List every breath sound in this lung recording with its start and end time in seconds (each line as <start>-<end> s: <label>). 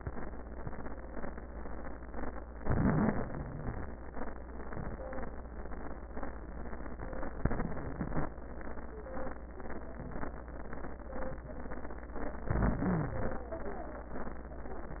2.60-4.03 s: inhalation
3.15-4.03 s: wheeze
7.42-8.31 s: inhalation
12.47-13.47 s: inhalation
12.88-13.19 s: wheeze